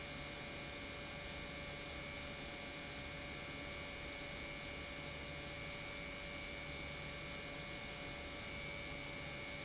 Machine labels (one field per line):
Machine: pump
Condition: normal